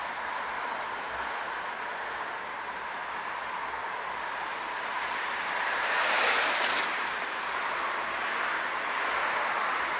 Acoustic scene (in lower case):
street